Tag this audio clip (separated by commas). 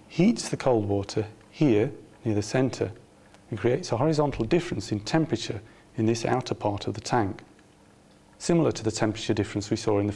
Speech